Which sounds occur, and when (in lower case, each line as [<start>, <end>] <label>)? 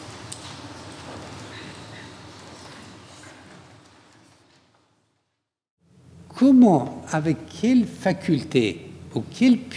[0.01, 5.64] background noise
[5.76, 9.75] background noise
[6.29, 8.76] man speaking
[9.09, 9.75] man speaking